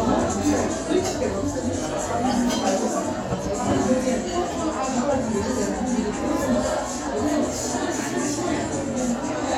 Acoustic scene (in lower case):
crowded indoor space